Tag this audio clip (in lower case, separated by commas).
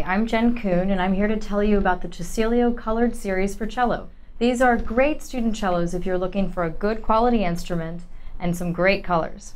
speech